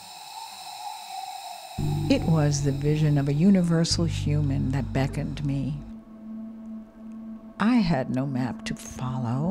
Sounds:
Gush, Speech, Music

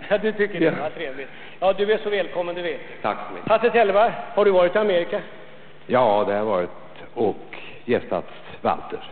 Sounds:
Speech

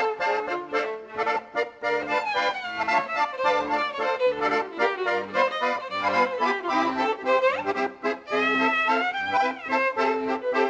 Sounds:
Accordion

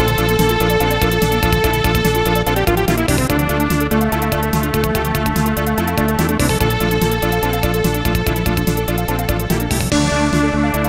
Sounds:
Music, Funny music

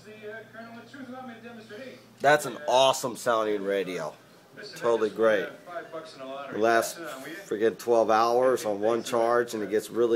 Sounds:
Speech

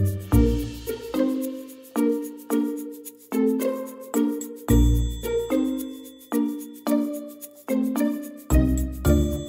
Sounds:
Music

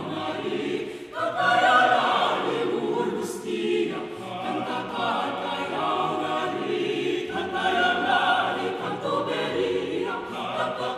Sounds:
singing choir

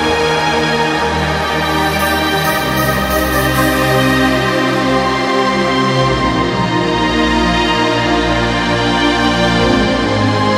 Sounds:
Electronic music, Trance music, Music

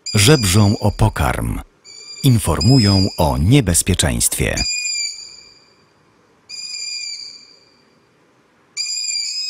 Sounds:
Owl

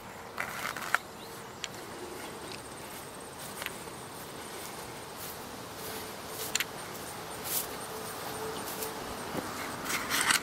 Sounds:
outside, rural or natural

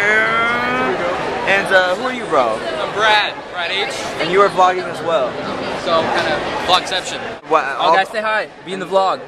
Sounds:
inside a public space, Speech

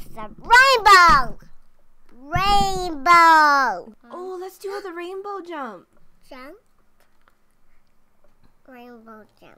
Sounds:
Speech

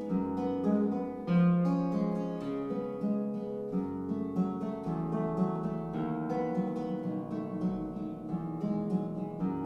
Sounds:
Music, Musical instrument, Guitar

